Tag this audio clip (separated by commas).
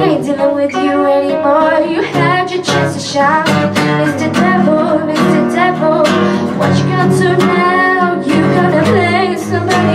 Music, Independent music